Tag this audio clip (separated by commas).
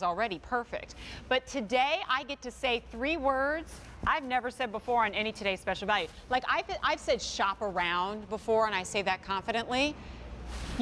Speech